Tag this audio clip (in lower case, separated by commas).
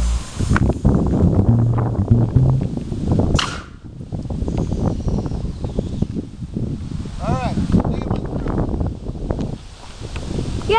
arrow